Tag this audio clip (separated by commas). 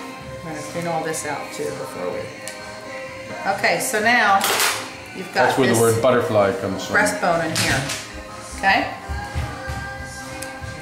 Music, Speech